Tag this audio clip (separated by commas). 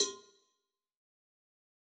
Cowbell, Bell